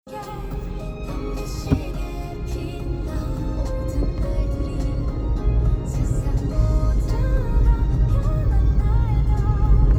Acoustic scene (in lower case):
car